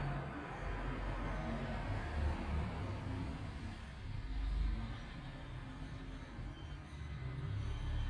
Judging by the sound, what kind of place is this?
street